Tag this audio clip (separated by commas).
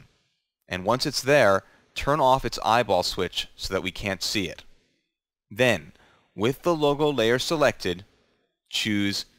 Speech